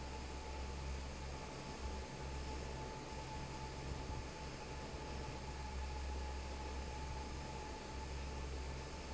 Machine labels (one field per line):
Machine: fan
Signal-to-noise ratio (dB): 6 dB